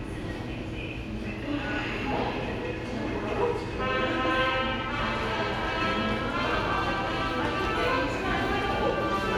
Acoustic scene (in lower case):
subway station